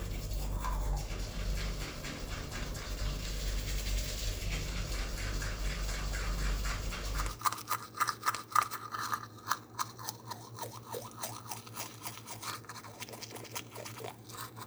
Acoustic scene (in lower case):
restroom